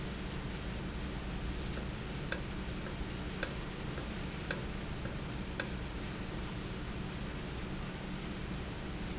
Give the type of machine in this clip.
valve